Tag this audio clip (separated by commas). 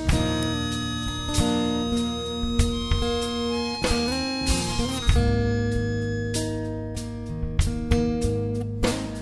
Steel guitar, Music